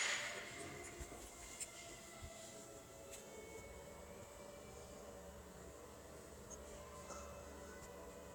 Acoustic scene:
elevator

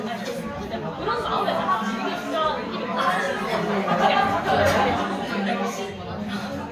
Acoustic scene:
crowded indoor space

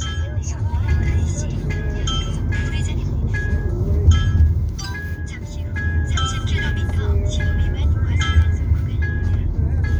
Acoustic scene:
car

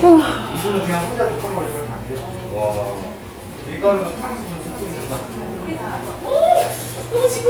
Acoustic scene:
crowded indoor space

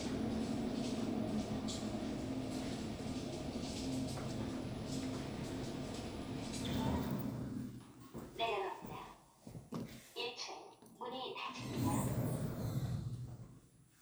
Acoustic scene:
elevator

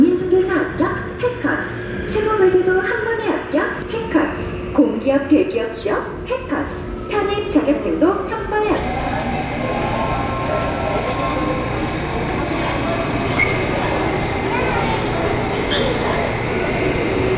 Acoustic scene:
subway station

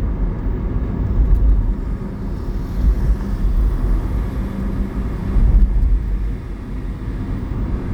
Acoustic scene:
car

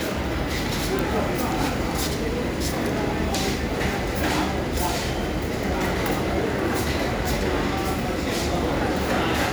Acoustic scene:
crowded indoor space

